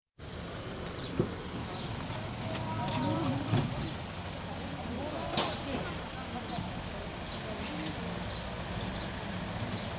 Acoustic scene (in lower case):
residential area